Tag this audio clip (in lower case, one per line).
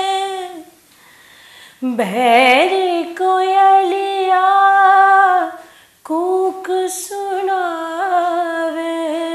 inside a small room